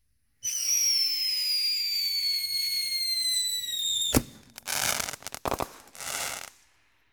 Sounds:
Explosion, Fireworks

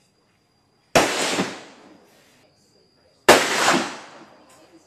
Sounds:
Gunshot, Explosion

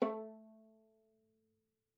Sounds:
Musical instrument, Music, Bowed string instrument

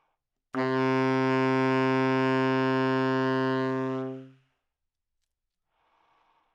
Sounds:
woodwind instrument, Music, Musical instrument

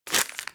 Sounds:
crinkling

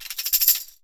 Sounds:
Tambourine, Percussion, Music, Musical instrument

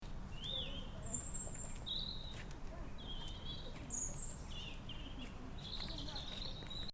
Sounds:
Wild animals, Bird, Animal

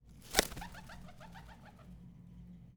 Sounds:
Animal, Bird, Wild animals

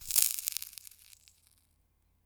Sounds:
Crackle, Fire

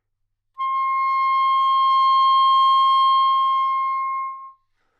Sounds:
Music, Wind instrument, Musical instrument

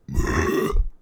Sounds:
eructation

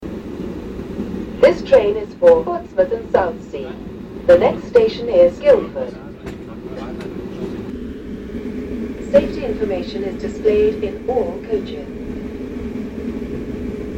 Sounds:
Vehicle, Rail transport, Train

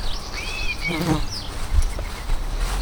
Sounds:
Animal, Insect, Wild animals, footsteps

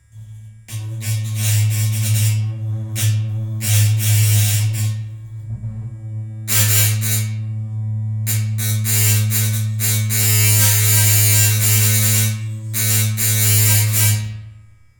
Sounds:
Domestic sounds

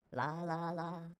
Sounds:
Human voice, Singing

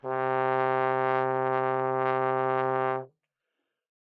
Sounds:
Musical instrument, Brass instrument, Music

